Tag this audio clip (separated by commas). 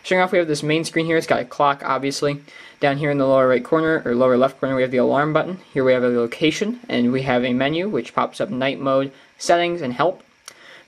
Speech